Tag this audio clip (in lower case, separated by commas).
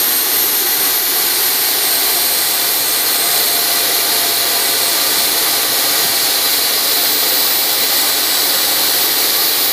idling